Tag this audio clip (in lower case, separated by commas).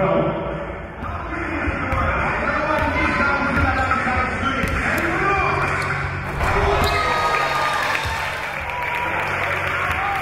speech